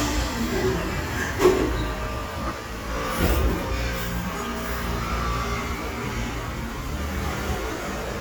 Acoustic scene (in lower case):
cafe